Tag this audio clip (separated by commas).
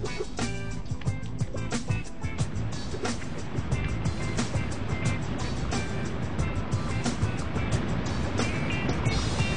Music